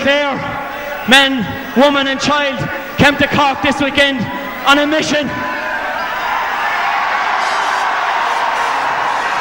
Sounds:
monologue, Male speech, Speech

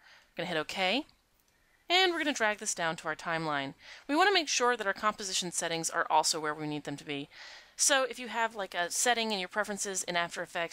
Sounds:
Speech

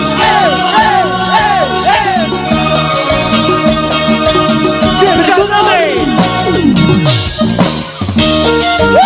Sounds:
Speech, Music

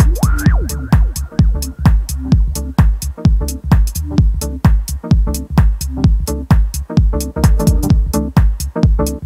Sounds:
Electronic music, Music, Techno

